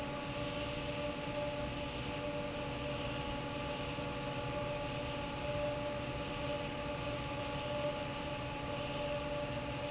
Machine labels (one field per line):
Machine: fan